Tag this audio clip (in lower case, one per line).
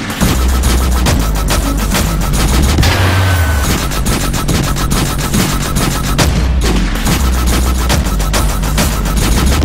dubstep
music